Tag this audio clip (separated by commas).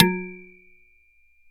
Domestic sounds, dishes, pots and pans